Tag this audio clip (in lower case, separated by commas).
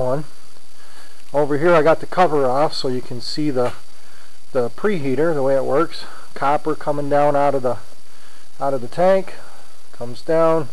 speech